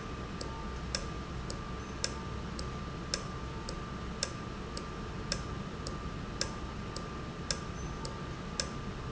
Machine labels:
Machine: valve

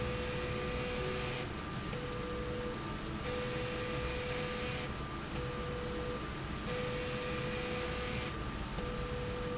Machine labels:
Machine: slide rail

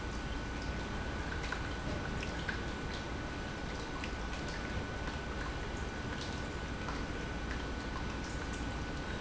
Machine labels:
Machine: pump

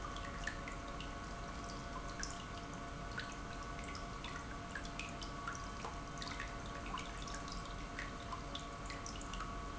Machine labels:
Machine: pump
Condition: normal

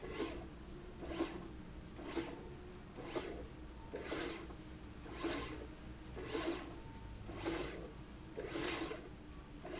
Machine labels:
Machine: slide rail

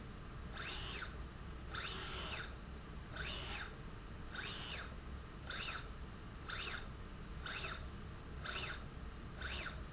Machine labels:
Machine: slide rail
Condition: normal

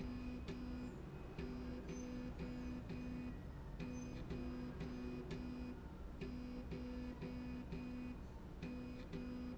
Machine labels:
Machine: slide rail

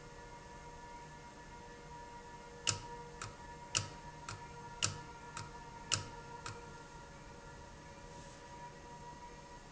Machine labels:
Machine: valve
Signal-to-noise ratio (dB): 6 dB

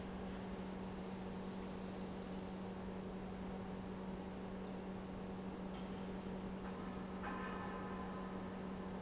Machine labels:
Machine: pump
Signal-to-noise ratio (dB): 6 dB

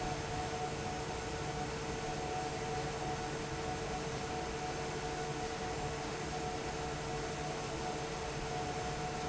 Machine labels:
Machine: fan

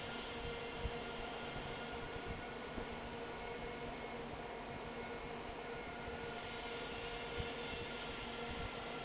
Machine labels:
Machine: fan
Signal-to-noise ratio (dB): 6 dB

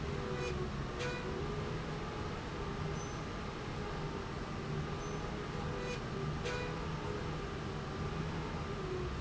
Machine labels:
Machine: slide rail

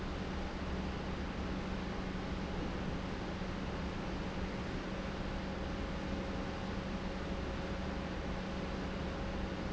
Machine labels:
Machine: pump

